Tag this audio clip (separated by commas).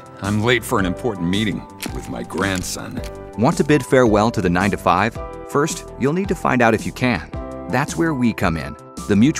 monologue, Male speech, Speech, Music